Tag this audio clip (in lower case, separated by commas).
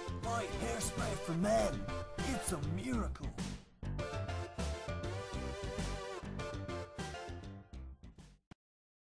music, speech